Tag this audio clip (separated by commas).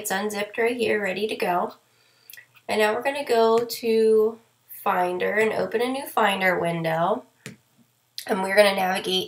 Speech